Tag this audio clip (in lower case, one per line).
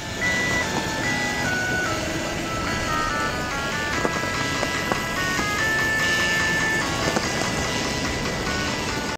soundtrack music
music